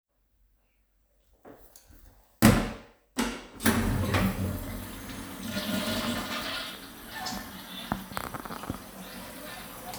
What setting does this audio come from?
restroom